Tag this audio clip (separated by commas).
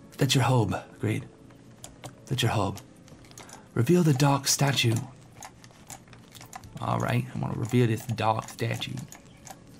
Computer keyboard, Speech, Typing